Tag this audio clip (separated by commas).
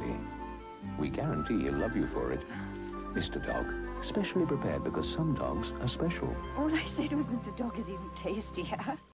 Speech, Music